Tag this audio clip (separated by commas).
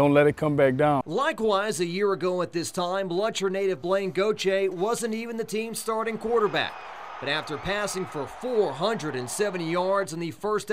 Speech